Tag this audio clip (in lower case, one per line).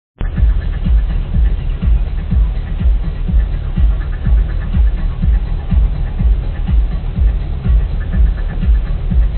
music